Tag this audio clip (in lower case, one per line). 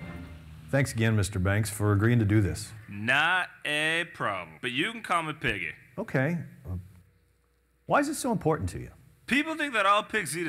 speech